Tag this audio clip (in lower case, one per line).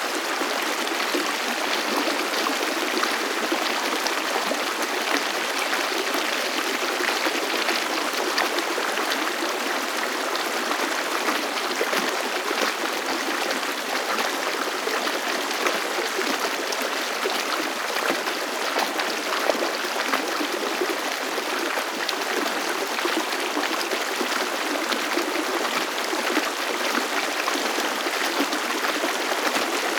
stream
water